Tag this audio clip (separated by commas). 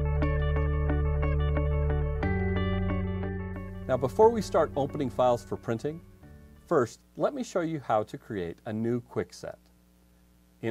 Speech, Music